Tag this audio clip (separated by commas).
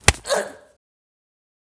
Human voice